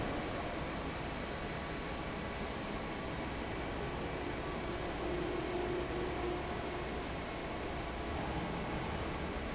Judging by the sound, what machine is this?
fan